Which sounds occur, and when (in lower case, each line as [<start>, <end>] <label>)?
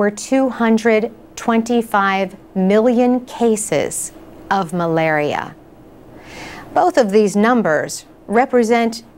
[0.01, 1.10] female speech
[0.01, 9.15] background noise
[1.29, 2.27] female speech
[2.46, 4.01] female speech
[4.40, 5.58] female speech
[6.18, 6.62] breathing
[6.69, 8.09] female speech
[8.26, 9.04] female speech